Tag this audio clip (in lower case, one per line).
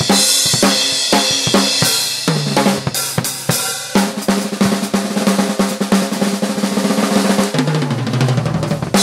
percussion
drum
bass drum
snare drum
drum roll
rimshot
drum kit